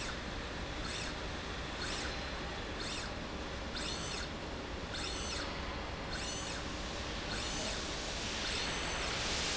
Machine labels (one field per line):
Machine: slide rail